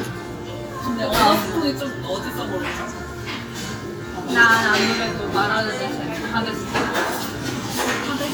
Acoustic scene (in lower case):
restaurant